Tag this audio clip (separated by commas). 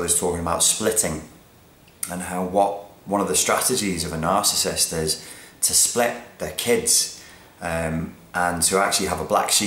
Speech